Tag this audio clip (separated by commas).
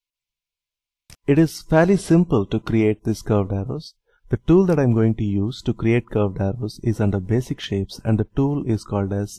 Speech